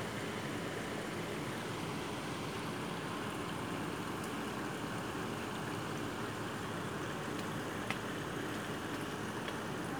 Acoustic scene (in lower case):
park